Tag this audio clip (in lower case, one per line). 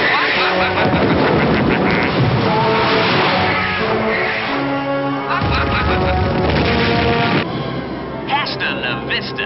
duck
music
quack
animal